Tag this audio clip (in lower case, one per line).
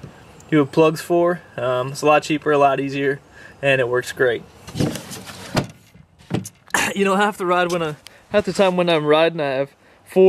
speech